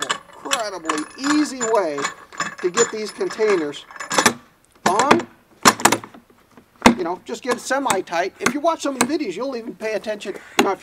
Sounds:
Speech, outside, urban or man-made

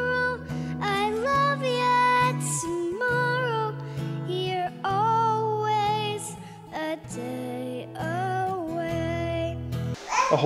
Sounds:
child singing

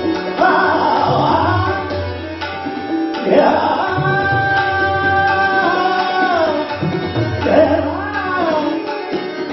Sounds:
Music, Musical instrument, Tabla, Singing

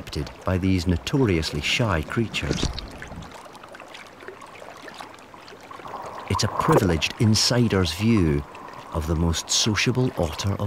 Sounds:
otter growling

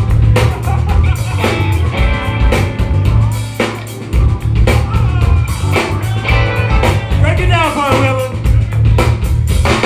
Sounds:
Speech, Music

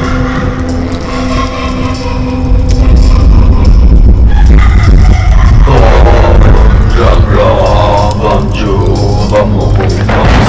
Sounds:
Mantra, Music

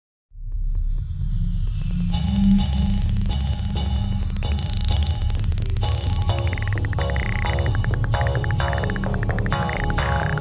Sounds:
Music

